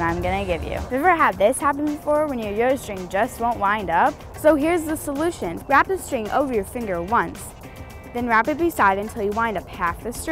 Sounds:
Speech, Music

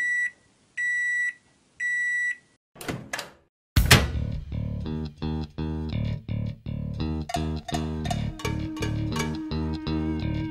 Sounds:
Beep, Music

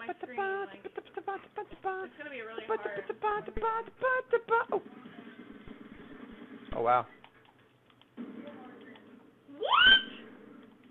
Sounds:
inside a small room, outside, urban or man-made, Speech

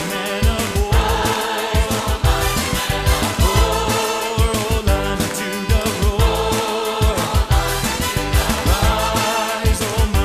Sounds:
Music

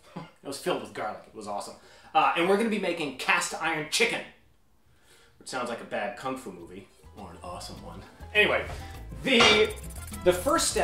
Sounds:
Speech

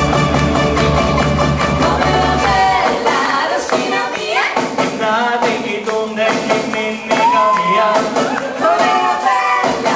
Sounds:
Music, Soul music

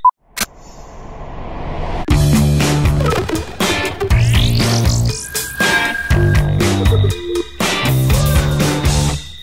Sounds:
Grunge, Music

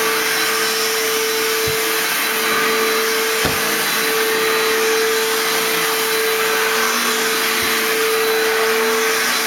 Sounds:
Vacuum cleaner

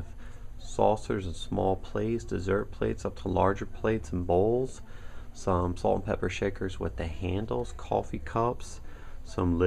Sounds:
Speech

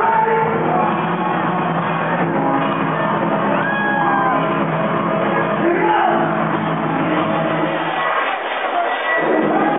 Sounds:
inside a large room or hall, Speech, Music

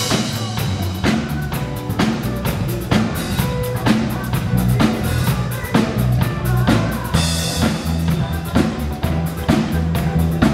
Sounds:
Rock and roll, Music

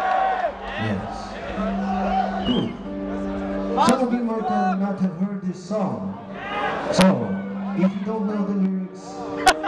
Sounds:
Speech, Music

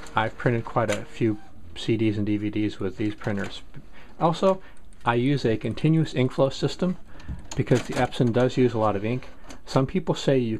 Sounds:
Speech

